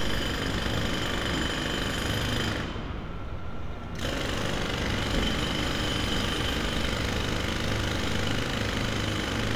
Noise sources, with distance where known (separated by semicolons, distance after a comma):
jackhammer, near